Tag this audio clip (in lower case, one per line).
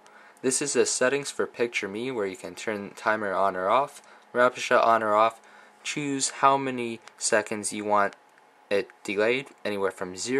speech